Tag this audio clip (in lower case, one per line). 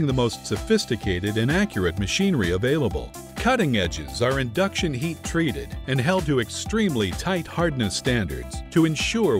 speech
music